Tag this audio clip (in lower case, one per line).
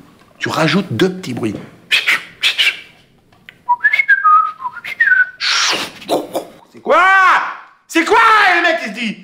whistling